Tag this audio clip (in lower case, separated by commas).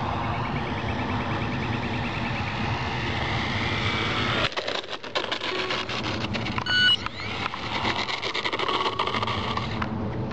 outside, rural or natural, aircraft